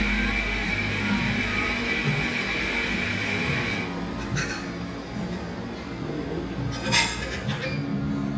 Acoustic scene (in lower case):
cafe